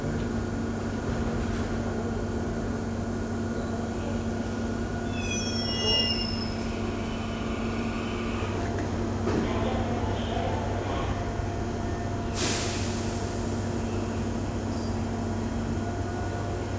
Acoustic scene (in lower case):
subway station